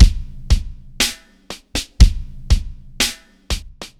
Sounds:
Musical instrument, Drum, Drum kit, Music, Percussion

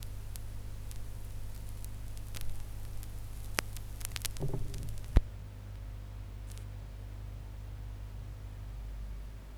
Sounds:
Crackle

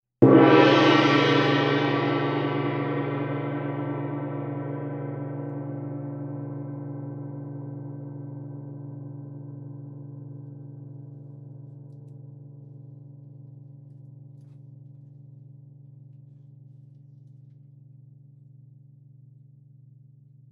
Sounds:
Gong, Musical instrument, Music, Percussion

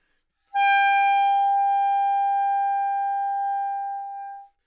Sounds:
Musical instrument, Music, woodwind instrument

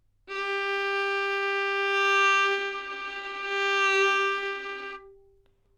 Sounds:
Bowed string instrument, Music, Musical instrument

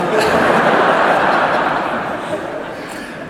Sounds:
Human group actions, Crowd

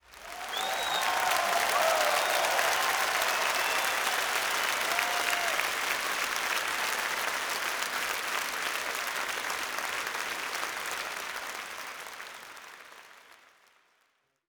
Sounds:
Applause, Human group actions

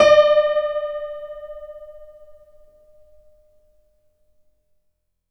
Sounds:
Music, Keyboard (musical), Piano, Musical instrument

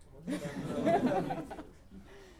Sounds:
Human voice, Laughter

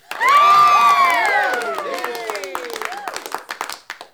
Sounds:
Crowd, Cheering, Applause, Human group actions

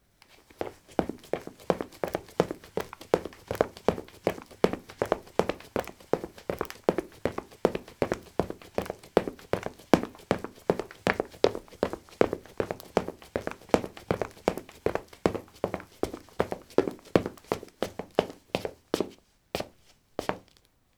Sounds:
Run

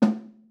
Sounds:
Drum, Snare drum, Musical instrument, Music, Percussion

